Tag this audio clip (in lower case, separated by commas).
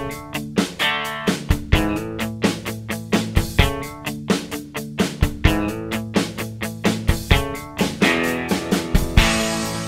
music